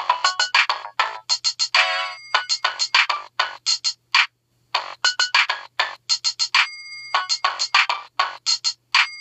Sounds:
Ringtone, Music

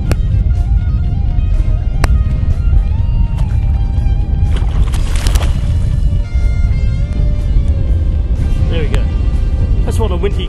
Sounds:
Music, Speech

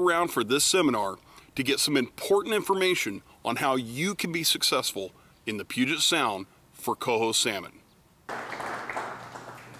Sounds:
Speech

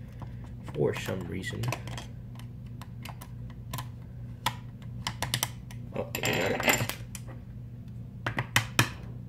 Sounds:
Speech

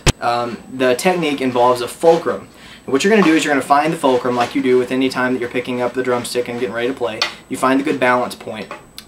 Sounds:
Speech

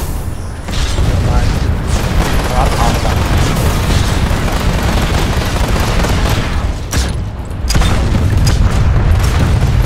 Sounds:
Speech

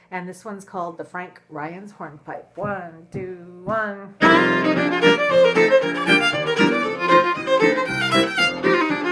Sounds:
Speech, Violin, Musical instrument, Music

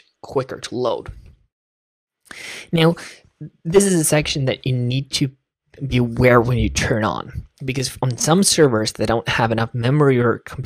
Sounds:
Narration, Speech

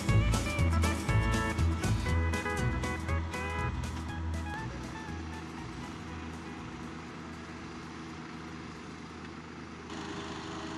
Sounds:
Music

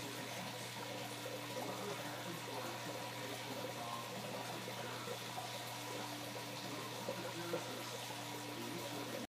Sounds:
Speech

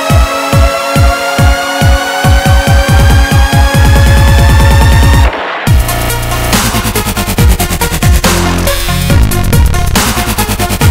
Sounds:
Techno, Trance music

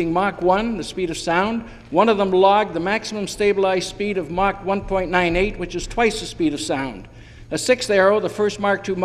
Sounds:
Speech

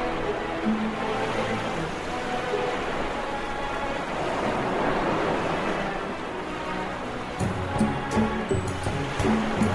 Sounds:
Music, Soundtrack music

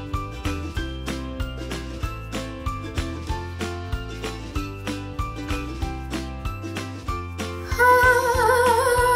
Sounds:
Music, inside a small room

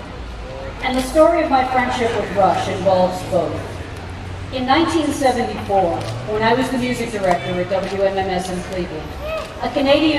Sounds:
Speech

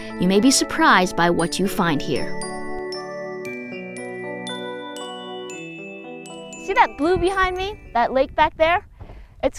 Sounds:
outside, rural or natural, Music, Speech

